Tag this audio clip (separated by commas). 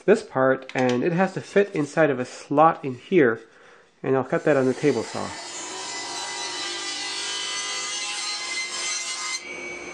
Tools, Power tool